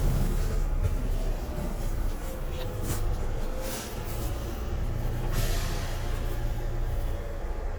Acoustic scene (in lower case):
bus